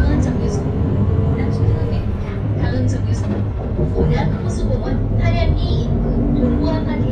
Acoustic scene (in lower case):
bus